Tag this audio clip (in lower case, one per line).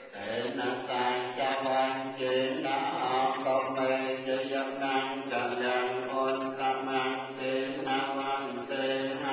mantra